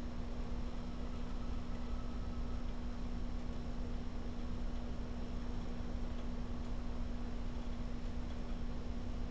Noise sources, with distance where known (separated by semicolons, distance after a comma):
background noise